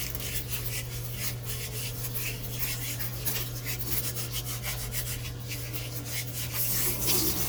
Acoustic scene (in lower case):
kitchen